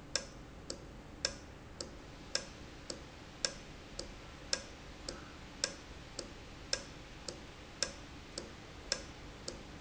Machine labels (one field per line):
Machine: valve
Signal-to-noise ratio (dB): 6 dB